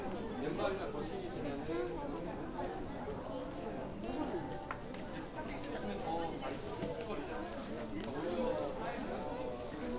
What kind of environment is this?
crowded indoor space